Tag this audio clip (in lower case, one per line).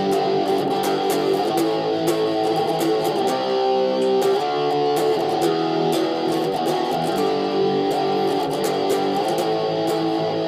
music